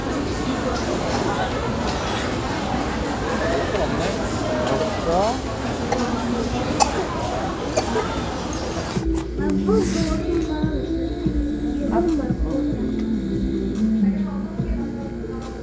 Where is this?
in a restaurant